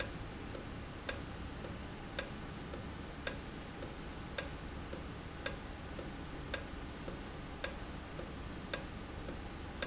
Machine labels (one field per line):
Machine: valve